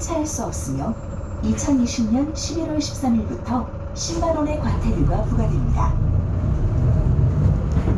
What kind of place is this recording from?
bus